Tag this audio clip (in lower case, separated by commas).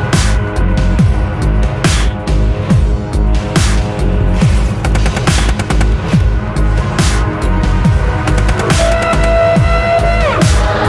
music, dubstep